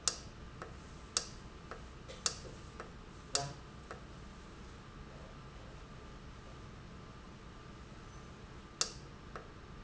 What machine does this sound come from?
valve